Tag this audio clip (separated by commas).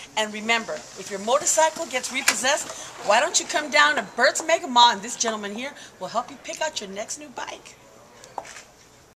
Speech